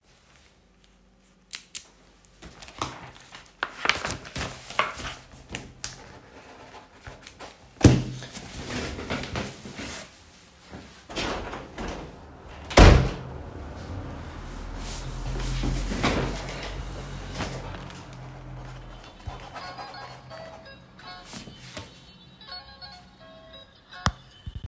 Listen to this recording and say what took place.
I walked across the room towards the window. I reached out, opened the window, and then pushed it closed again.